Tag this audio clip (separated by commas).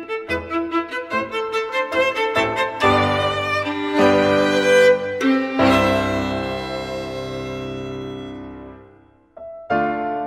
Musical instrument, Violin, Music